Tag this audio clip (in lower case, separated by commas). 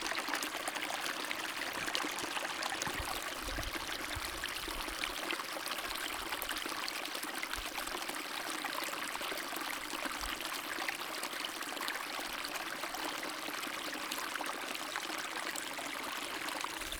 stream, water